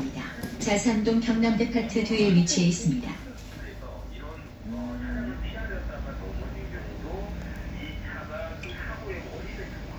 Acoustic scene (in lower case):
bus